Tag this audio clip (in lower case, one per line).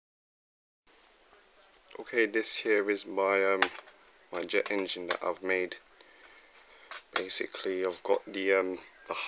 speech